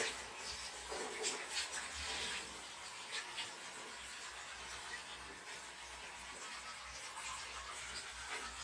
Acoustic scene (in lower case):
restroom